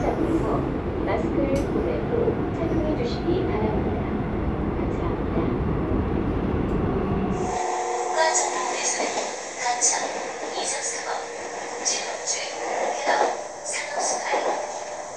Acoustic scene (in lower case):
subway train